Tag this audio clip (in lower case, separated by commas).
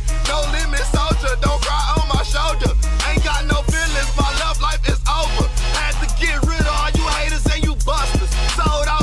music